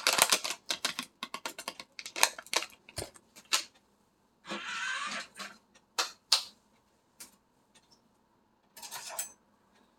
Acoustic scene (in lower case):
kitchen